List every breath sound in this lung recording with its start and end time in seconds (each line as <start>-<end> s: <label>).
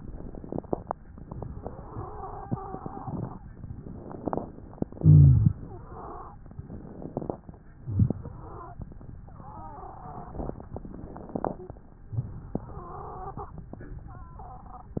1.56-3.38 s: wheeze
3.85-4.95 s: inhalation
4.95-5.64 s: exhalation
4.97-5.60 s: rhonchi
5.67-6.40 s: wheeze
6.55-7.40 s: inhalation
7.76-8.24 s: exhalation
7.80-8.20 s: rhonchi
8.29-8.84 s: wheeze
9.22-10.57 s: wheeze
10.62-11.57 s: inhalation
12.07-12.62 s: exhalation
12.58-13.61 s: wheeze